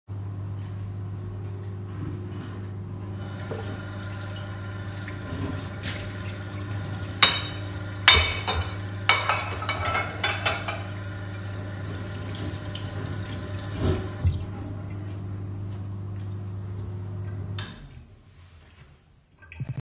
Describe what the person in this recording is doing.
microwave was running, opened the water, rinsed a plate then put it away, then closed the microwave.